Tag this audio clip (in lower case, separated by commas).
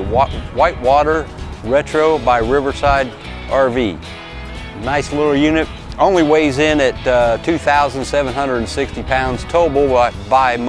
music, speech